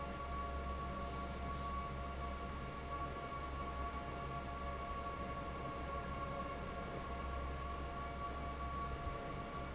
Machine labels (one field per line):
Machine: fan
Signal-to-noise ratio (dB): 0 dB